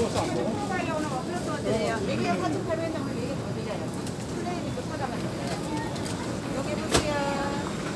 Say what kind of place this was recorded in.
crowded indoor space